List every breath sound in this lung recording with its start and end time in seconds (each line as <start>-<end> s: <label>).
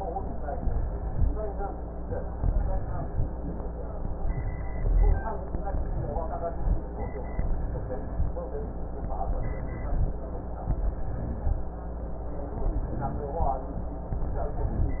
0.40-1.24 s: inhalation
2.39-3.23 s: inhalation
4.34-5.18 s: inhalation
7.38-8.22 s: inhalation
9.28-10.11 s: inhalation
10.74-11.57 s: inhalation
12.66-13.49 s: inhalation
14.17-15.00 s: inhalation